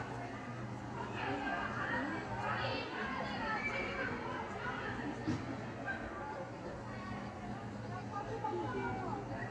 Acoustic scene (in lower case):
park